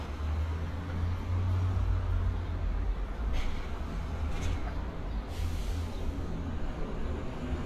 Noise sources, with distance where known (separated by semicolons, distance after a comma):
large-sounding engine; non-machinery impact